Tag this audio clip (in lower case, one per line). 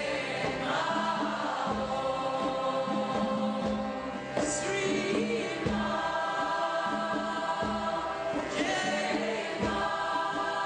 music